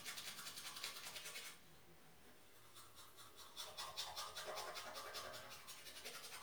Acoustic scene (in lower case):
restroom